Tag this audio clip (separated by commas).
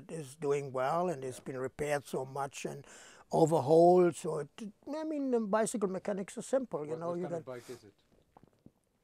Speech